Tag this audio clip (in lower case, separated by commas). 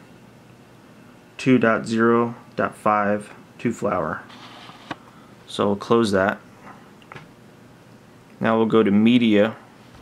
inside a small room, speech